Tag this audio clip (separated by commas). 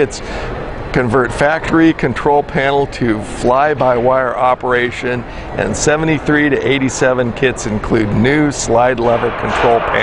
Speech